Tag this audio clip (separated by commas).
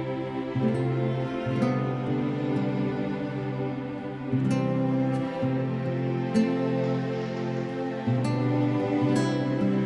Sad music, Musical instrument, Music